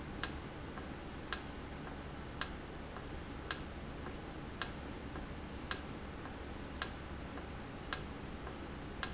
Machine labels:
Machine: valve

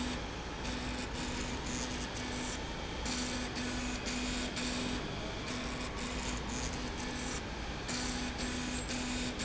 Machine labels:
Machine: slide rail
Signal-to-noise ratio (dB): -6 dB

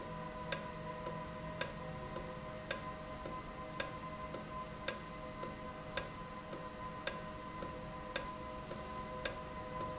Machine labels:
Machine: valve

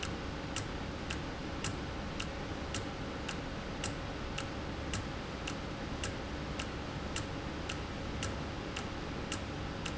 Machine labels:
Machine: valve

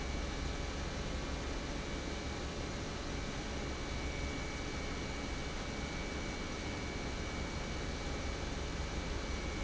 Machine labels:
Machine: pump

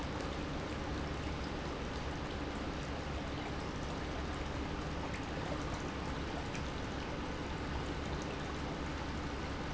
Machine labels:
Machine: pump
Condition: normal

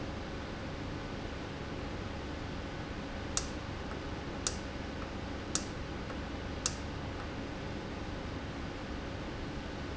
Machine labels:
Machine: valve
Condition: normal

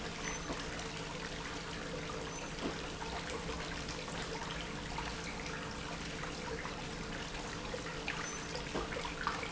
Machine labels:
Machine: pump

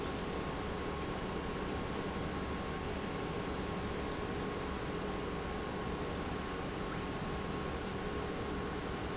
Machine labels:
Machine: pump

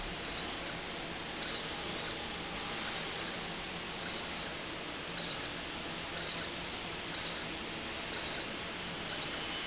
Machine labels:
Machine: slide rail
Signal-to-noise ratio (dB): -6 dB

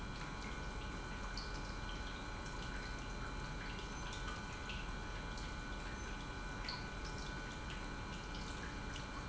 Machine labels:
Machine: pump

